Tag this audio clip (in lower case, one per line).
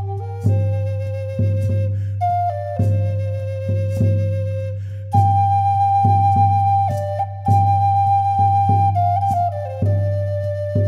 playing flute